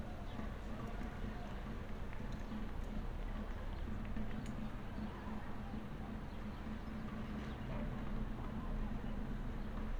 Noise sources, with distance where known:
person or small group talking, far

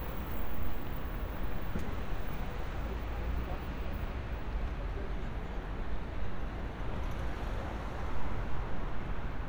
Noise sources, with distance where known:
medium-sounding engine, far
person or small group talking, far

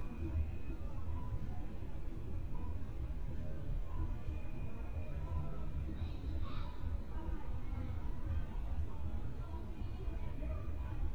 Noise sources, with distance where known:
background noise

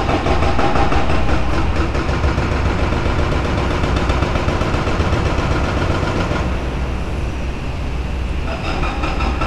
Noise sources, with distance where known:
hoe ram

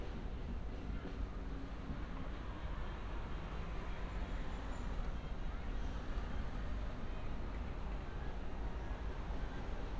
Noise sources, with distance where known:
medium-sounding engine
music from an unclear source, far

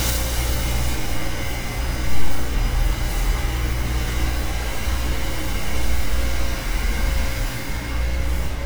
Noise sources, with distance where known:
large-sounding engine, near

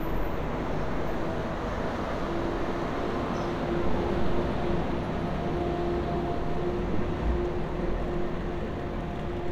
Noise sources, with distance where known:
large-sounding engine, near

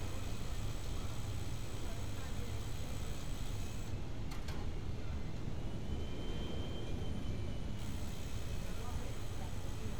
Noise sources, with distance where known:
person or small group talking

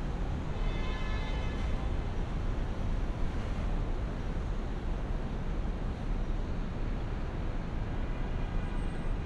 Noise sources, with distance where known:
car horn

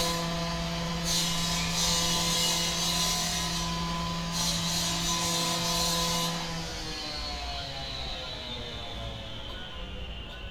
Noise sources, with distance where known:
unidentified powered saw, near

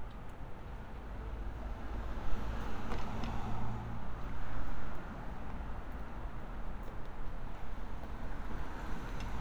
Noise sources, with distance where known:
medium-sounding engine, near

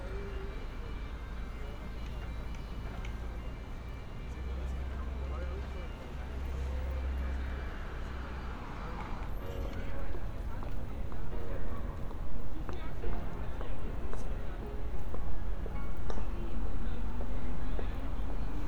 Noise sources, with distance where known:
music from an unclear source

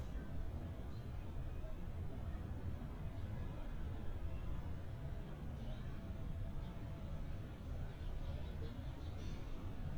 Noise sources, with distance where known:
unidentified human voice, far

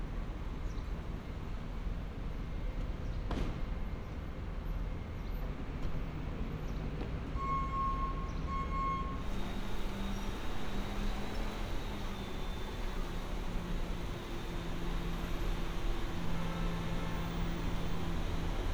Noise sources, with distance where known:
unidentified alert signal

